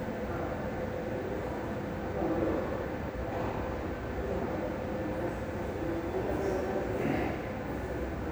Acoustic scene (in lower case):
subway station